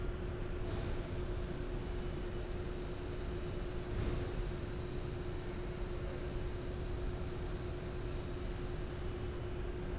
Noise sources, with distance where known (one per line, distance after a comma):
engine of unclear size
non-machinery impact, far